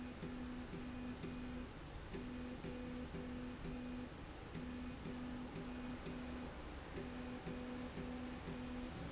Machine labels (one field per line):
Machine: slide rail